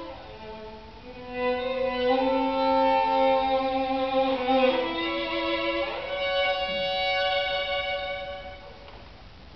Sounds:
Violin, playing violin, Musical instrument, Music

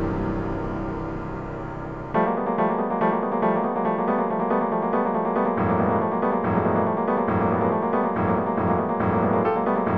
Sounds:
Background music, Music

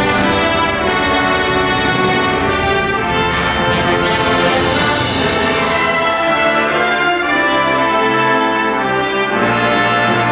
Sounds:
Music, Orchestra

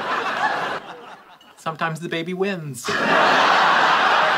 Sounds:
Speech

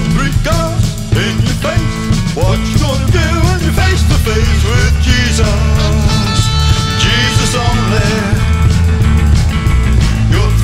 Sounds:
Music, Christmas music

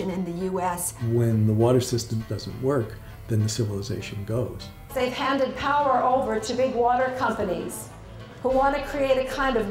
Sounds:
Speech, Music

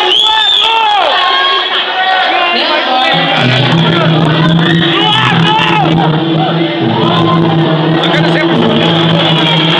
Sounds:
Speech, Music

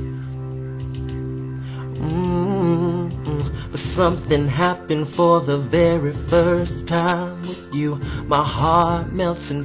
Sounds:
Music, Male singing

